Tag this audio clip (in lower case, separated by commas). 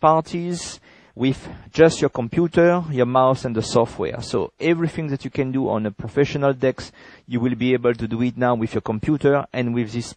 speech